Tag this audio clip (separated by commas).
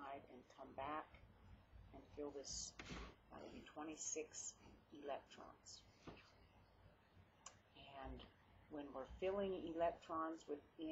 Speech